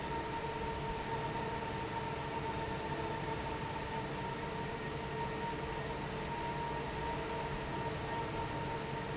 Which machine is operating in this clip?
fan